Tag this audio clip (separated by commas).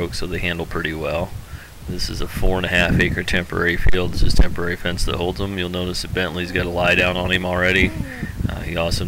Speech